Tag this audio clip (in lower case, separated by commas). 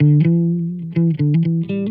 music, musical instrument, plucked string instrument, guitar, electric guitar